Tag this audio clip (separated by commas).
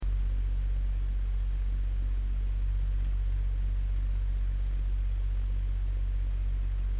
Mechanical fan, Mechanisms